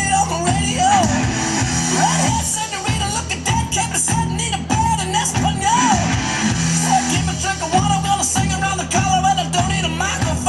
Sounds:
Music

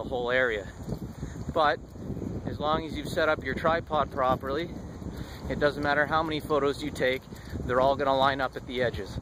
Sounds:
Speech

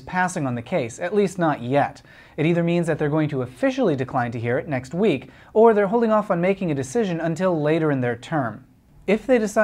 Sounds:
Speech

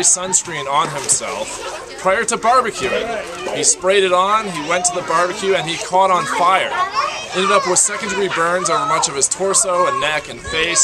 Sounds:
Speech

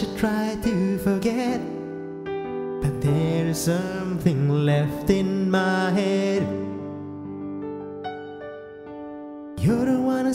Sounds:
Music, Tender music

